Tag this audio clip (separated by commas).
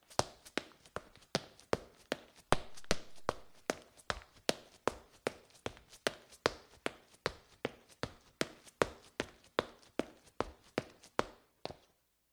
Run